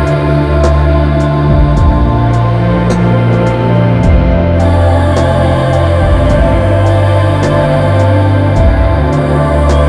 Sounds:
Music

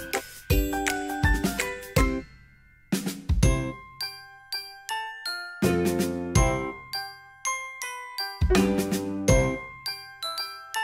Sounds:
Music

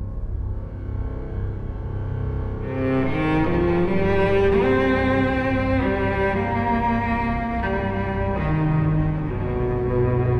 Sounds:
Cello, Music, Musical instrument

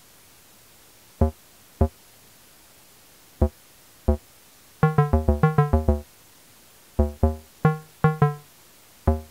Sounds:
Music

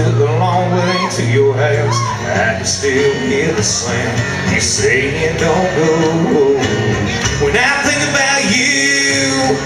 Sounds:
Music, Male singing

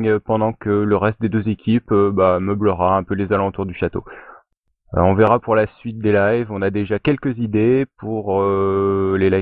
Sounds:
Speech

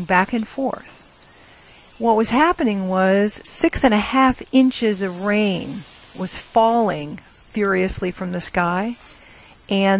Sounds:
Speech

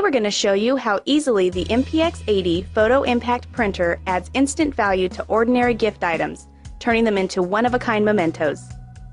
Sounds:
Music, Speech

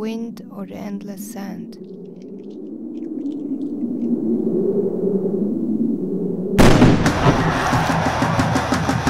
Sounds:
Speech, Music

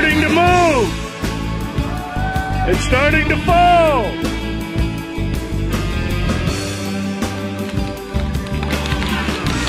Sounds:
Music, Speech

